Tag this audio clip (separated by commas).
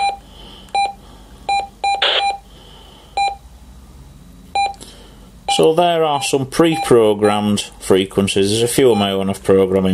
DTMF, Speech